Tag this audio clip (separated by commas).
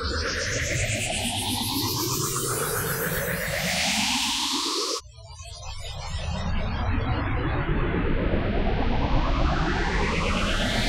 Music